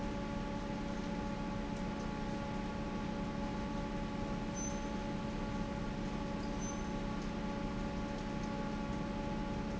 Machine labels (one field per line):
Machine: fan